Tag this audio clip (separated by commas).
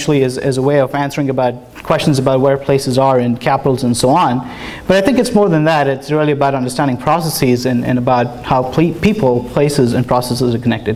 Speech